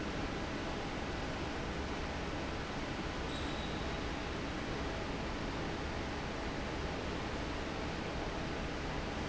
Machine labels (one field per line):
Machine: fan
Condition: normal